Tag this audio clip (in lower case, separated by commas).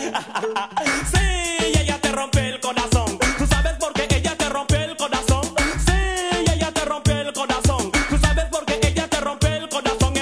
afrobeat, music